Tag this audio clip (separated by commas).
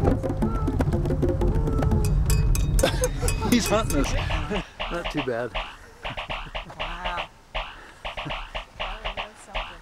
Speech, Music